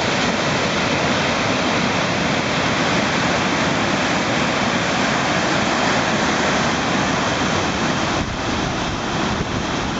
A large amount of water is rushing